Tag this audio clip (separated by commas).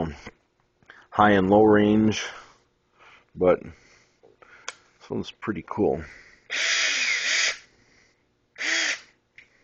Speech, Drill